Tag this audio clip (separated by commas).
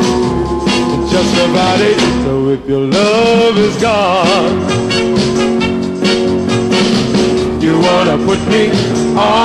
Music